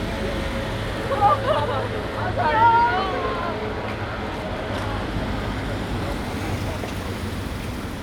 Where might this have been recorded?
on a street